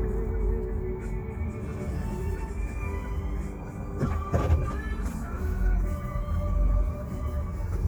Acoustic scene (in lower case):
car